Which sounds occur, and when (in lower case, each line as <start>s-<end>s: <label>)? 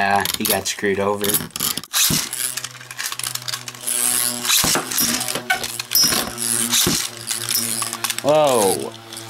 0.0s-0.2s: male speech
0.0s-9.2s: mechanisms
0.4s-1.5s: male speech
2.1s-2.2s: tap
4.6s-4.8s: tap
4.9s-5.2s: squeal
5.9s-6.3s: squeal
7.5s-7.7s: squeal
8.2s-8.9s: male speech